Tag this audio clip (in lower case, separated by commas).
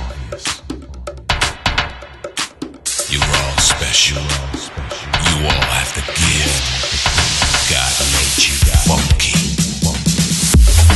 electronic music, electronic dance music, house music, music